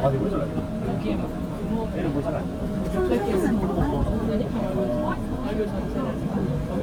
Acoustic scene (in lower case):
subway train